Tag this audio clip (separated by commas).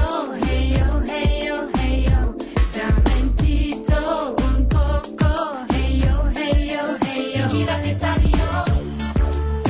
Soundtrack music, Music